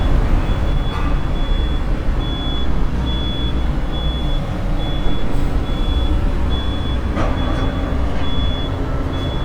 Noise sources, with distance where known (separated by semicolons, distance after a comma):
reverse beeper, near